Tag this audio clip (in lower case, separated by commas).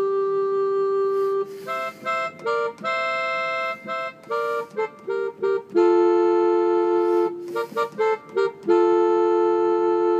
musical instrument, keyboard (musical), music, piano, harpsichord